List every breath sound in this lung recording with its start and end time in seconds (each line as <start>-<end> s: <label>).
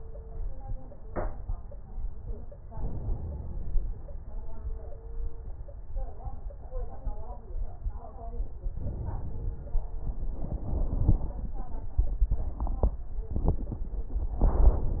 2.70-4.00 s: inhalation
2.70-4.00 s: crackles
8.77-9.90 s: inhalation
8.77-9.90 s: crackles